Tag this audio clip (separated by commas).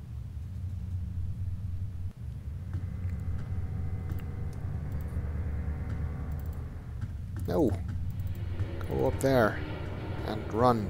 Speech